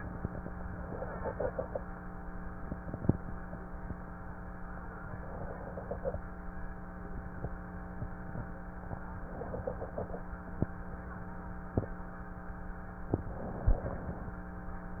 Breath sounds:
0.72-1.79 s: inhalation
5.10-6.16 s: inhalation
9.20-10.27 s: inhalation
13.18-14.24 s: inhalation

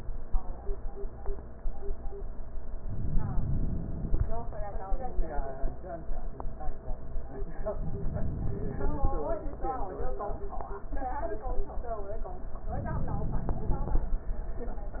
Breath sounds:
2.76-4.19 s: inhalation
7.75-9.17 s: inhalation
12.74-14.16 s: inhalation

